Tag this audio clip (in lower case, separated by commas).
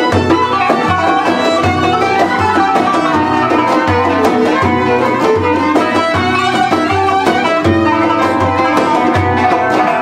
folk music, music